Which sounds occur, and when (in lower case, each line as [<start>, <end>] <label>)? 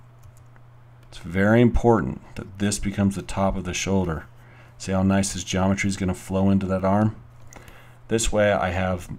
[0.00, 9.15] mechanisms
[0.13, 0.53] generic impact sounds
[0.92, 1.10] generic impact sounds
[0.98, 4.17] man speaking
[4.32, 4.75] breathing
[4.75, 7.12] man speaking
[7.33, 7.68] generic impact sounds
[7.43, 8.00] breathing
[8.05, 9.15] man speaking